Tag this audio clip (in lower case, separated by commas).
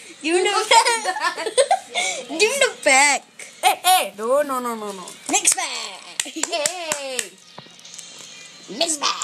speech, music